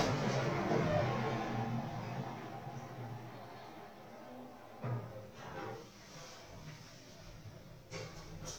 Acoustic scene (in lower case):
elevator